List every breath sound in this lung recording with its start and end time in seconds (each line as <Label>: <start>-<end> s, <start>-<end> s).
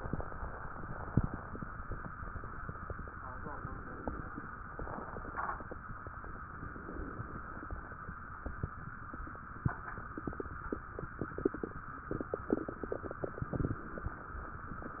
Inhalation: 3.49-4.44 s, 6.51-7.46 s